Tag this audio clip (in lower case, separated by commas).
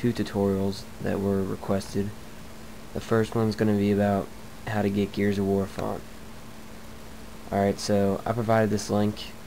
speech